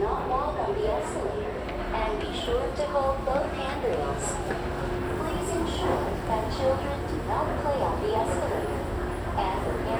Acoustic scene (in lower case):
crowded indoor space